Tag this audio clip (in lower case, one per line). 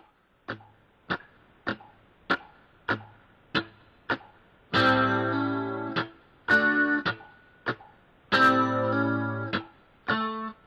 strum
plucked string instrument
music
electric guitar
guitar
musical instrument